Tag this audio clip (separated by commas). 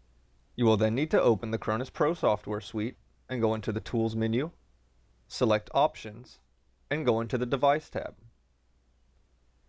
Speech